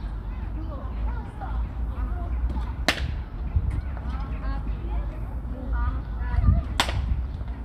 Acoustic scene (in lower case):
park